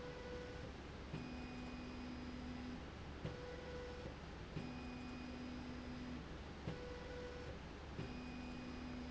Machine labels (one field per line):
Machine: slide rail